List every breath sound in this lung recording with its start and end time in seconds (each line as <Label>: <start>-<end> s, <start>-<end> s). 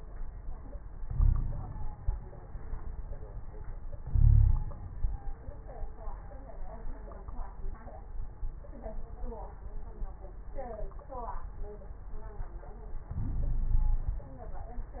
Inhalation: 0.98-1.93 s, 4.04-4.84 s, 13.11-14.30 s
Wheeze: 0.98-1.93 s, 4.04-4.84 s, 13.11-14.30 s